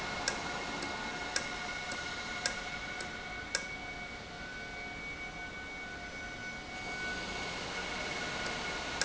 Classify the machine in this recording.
valve